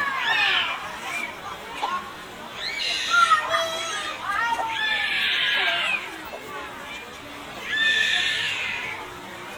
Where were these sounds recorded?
in a park